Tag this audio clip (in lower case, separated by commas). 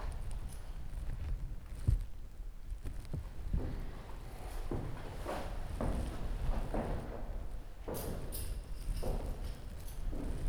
domestic sounds, keys jangling